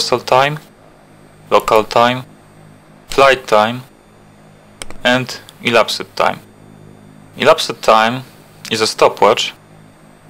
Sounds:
speech

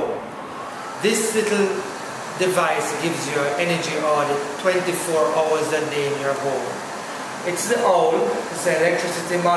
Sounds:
speech

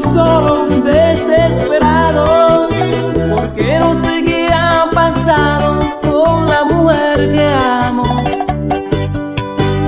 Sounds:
soundtrack music
music

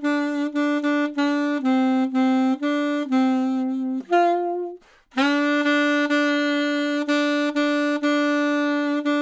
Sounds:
playing saxophone

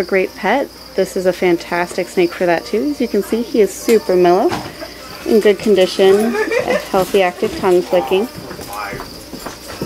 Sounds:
music
inside a public space
speech

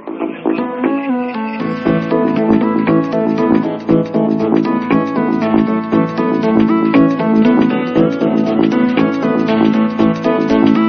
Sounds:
music

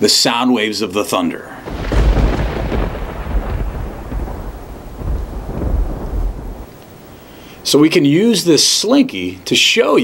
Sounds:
speech

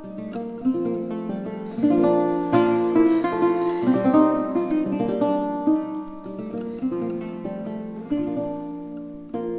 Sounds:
musical instrument
acoustic guitar
plucked string instrument
music
guitar

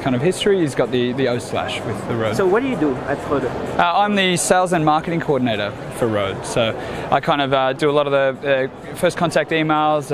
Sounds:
speech

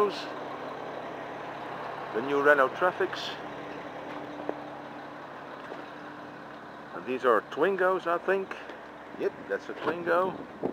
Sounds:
vehicle
truck
speech

